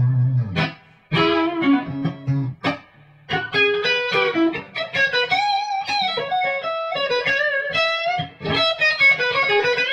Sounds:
music
plucked string instrument
electric guitar
musical instrument
playing electric guitar
guitar

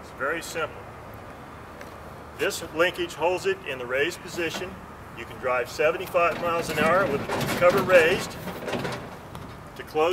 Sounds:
speech

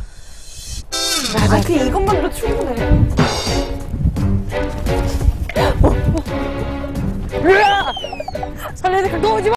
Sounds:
music
speech

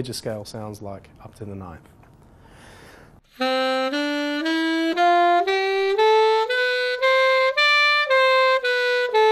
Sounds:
saxophone
music
wind instrument
jazz
speech
musical instrument

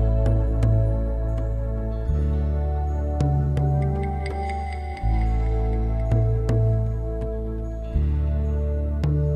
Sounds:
new-age music

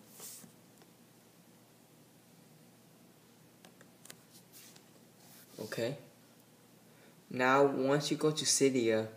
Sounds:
inside a small room
speech

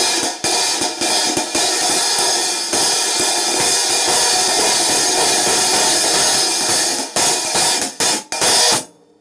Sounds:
playing cymbal

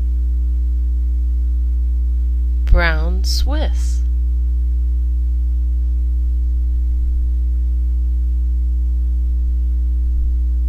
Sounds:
speech

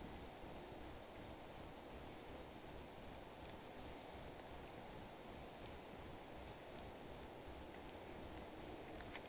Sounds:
walk

